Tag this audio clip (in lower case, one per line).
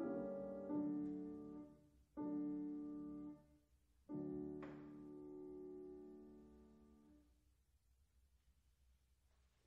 piano
music